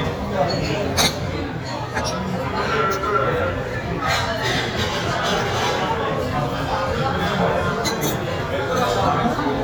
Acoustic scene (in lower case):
restaurant